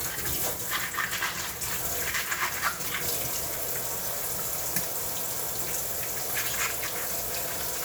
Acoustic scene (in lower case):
kitchen